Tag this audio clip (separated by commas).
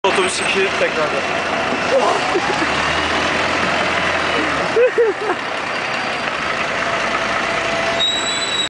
Vehicle, Speech, Bus